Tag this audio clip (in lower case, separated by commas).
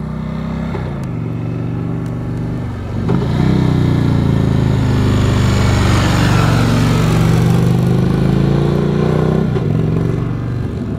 vehicle, accelerating